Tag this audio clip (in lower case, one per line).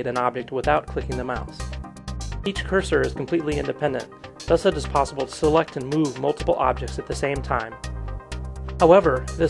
speech
music